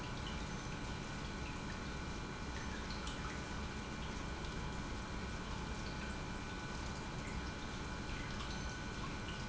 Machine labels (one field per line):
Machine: pump